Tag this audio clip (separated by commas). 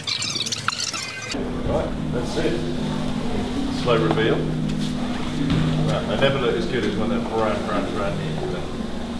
Speech, inside a large room or hall, Music